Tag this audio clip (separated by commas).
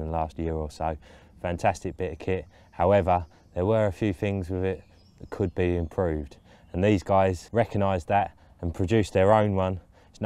Speech